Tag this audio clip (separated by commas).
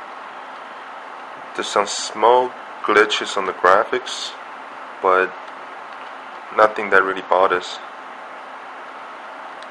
Speech